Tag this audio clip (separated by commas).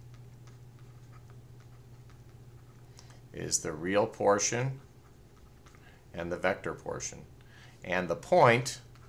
Speech, inside a small room